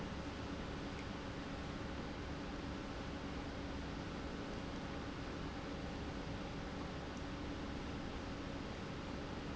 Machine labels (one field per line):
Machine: pump